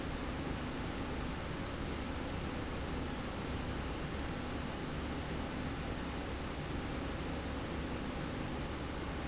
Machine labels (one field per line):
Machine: slide rail